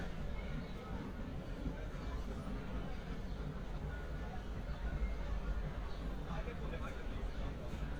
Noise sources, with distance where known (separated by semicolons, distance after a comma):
music from an unclear source, far; person or small group talking